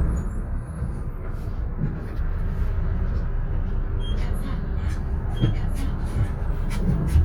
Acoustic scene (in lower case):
bus